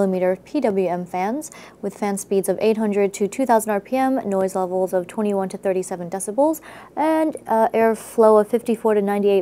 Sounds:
speech

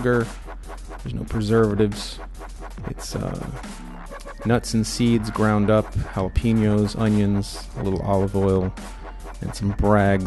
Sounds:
music, speech

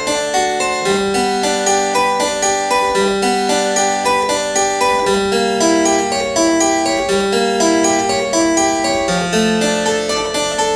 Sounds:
playing harpsichord

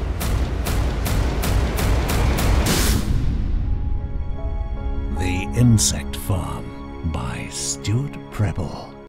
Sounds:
speech, music

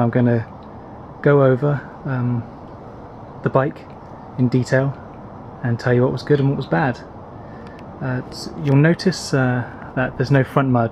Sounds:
speech

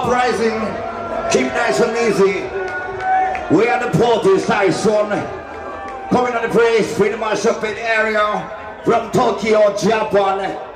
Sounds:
screaming, speech

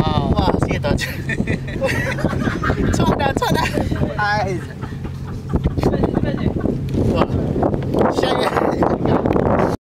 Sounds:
speech

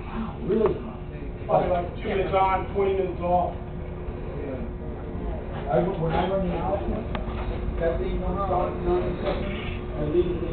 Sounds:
speech

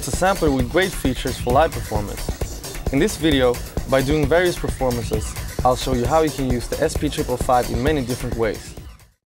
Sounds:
music, speech

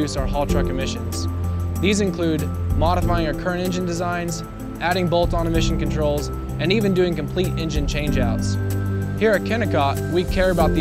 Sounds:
speech, music

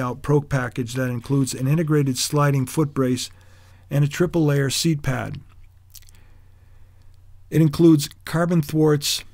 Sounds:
speech

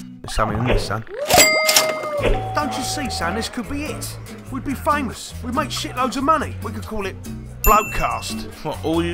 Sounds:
music, speech

